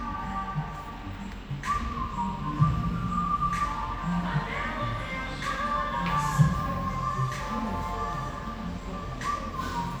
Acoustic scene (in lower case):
cafe